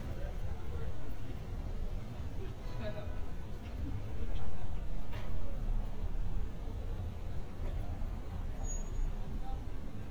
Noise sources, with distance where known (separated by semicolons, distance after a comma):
unidentified human voice, far